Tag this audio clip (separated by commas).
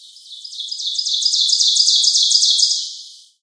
Wild animals, Animal, Bird, Chirp, Bird vocalization